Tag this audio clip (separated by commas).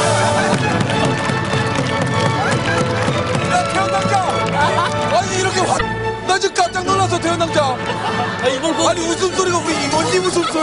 Music, Speech